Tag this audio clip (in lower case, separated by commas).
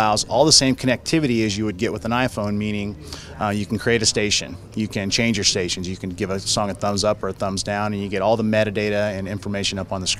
speech